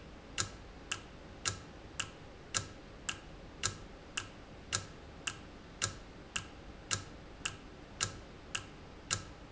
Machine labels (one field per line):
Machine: valve